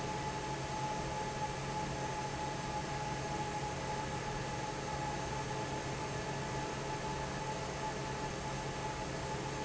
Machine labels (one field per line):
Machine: fan